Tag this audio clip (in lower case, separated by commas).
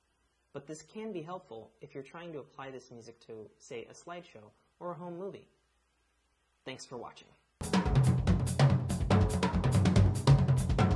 music, hi-hat, speech